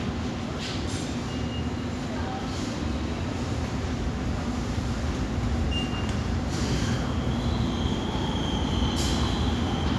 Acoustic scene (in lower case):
subway station